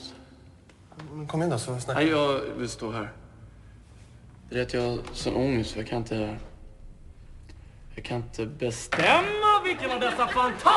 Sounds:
speech

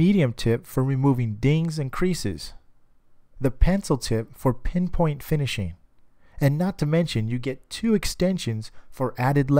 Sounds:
speech

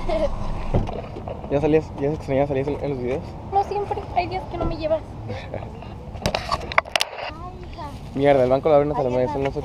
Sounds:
speech

